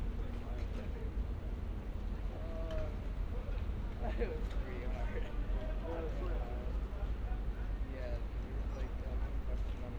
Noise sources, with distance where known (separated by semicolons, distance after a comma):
person or small group talking